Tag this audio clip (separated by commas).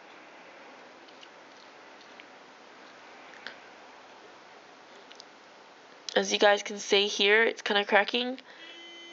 Speech